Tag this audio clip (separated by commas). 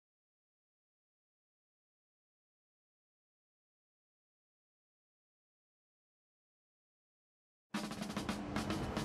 Speech, inside a large room or hall, Music, Silence